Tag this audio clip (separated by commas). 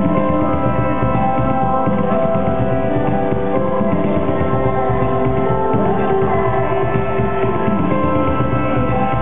Music, Electronic music